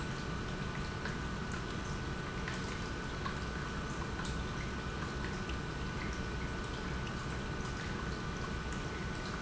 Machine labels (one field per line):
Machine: pump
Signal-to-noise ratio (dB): -6 dB